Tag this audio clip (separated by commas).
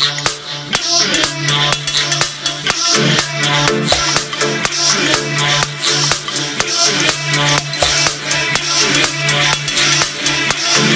Music, House music